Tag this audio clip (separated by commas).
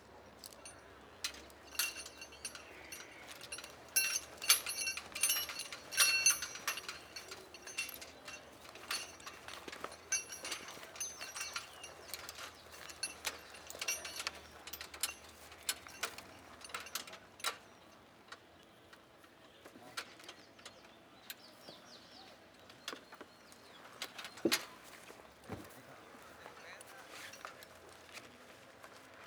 Mechanisms